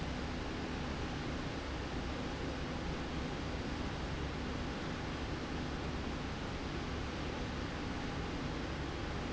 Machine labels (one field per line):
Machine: slide rail